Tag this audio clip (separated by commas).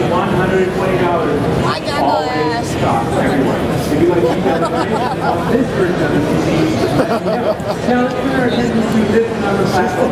Speech